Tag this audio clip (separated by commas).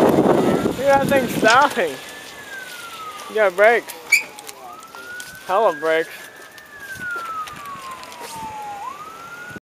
Speech, Vehicle